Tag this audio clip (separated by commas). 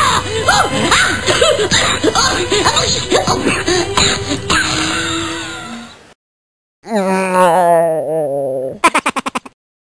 Music